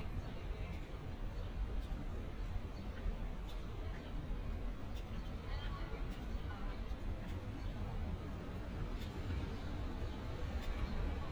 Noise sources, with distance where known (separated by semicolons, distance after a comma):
unidentified human voice